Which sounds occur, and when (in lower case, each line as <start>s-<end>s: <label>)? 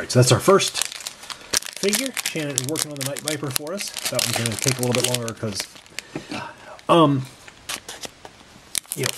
0.0s-0.8s: male speech
0.0s-9.1s: background noise
0.7s-6.0s: crinkling
1.8s-2.1s: male speech
2.3s-5.7s: male speech
6.0s-6.4s: breathing
6.3s-6.7s: male speech
6.9s-7.3s: male speech
7.6s-8.4s: crinkling